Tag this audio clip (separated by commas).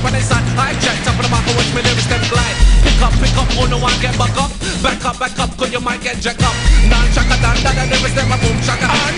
Music